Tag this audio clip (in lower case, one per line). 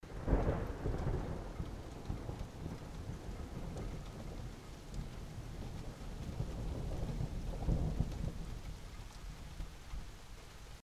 thunderstorm
thunder